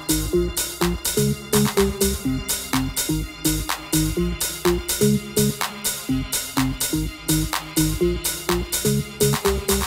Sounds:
Music, Electronica, Electronic music

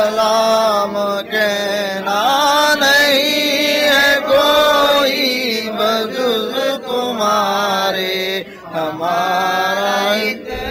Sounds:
Mantra

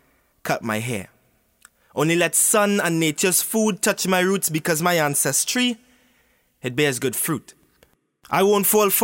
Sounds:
Speech, man speaking

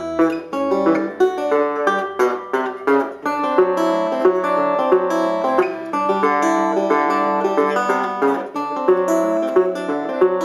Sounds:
Music, Plucked string instrument, Musical instrument, Guitar

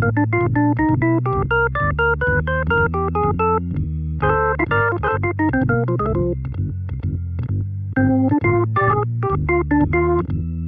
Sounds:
Synthesizer, Music

